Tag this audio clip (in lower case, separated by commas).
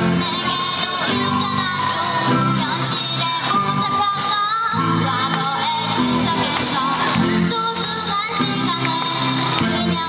music, child singing